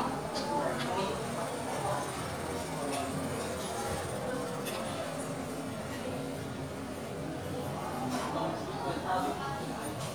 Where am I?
in a crowded indoor space